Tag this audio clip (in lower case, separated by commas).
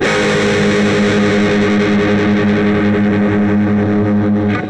plucked string instrument, musical instrument, guitar, music, electric guitar